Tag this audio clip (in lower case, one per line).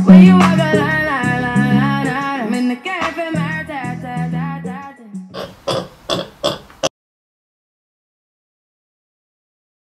oink
music